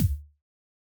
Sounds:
thump

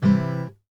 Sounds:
guitar
plucked string instrument
musical instrument
music

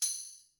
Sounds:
tambourine
percussion
musical instrument
music

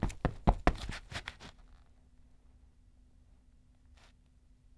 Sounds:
run

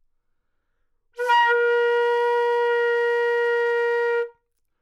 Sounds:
wind instrument
music
musical instrument

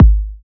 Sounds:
musical instrument
music
drum
percussion
bass drum

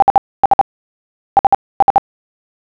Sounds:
telephone
alarm

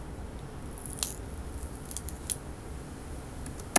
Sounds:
crack

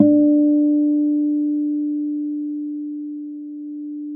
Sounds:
acoustic guitar
music
musical instrument
plucked string instrument
guitar

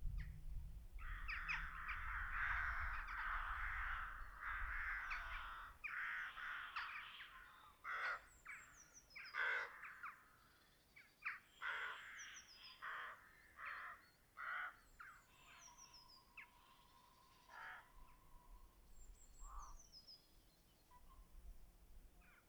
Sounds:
bird
crow
bird vocalization
wild animals
animal

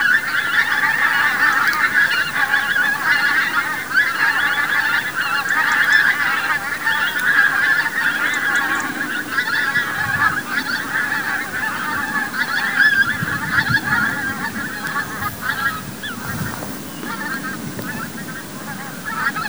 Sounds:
fowl
animal
livestock

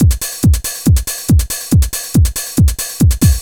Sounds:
musical instrument
percussion
drum kit
music

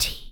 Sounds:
human voice
whispering

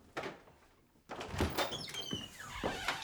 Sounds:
squeak

